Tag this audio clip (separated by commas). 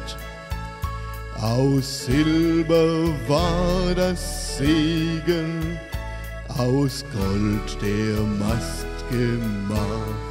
Male singing, Music